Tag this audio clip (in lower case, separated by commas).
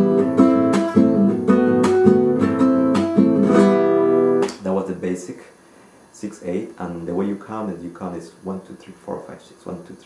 plucked string instrument, speech, music, acoustic guitar, musical instrument, guitar, strum